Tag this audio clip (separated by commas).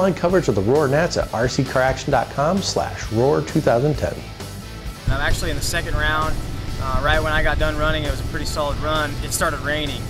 Music, Speech